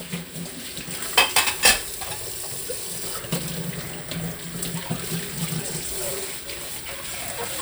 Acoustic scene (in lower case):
kitchen